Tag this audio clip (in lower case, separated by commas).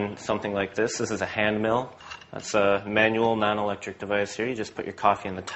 speech